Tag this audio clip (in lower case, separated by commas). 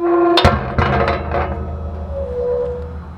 squeak, thud